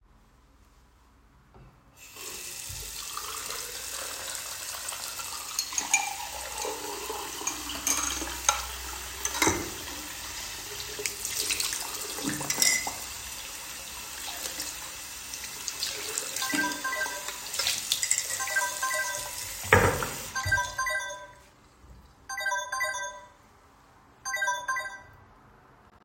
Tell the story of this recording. I was washing the dishes in the kitchen. While doing so, my phone rang in the background.